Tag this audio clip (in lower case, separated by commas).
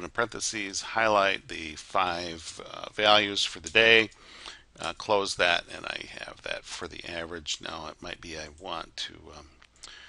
speech